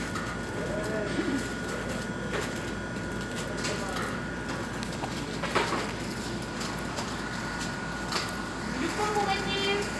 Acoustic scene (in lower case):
cafe